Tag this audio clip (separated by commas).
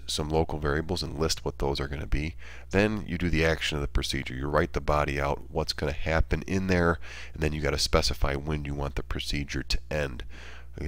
Speech